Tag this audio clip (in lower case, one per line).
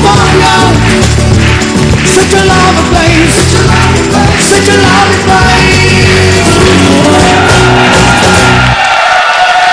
music
flamenco